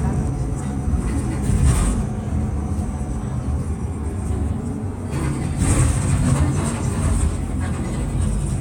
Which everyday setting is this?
bus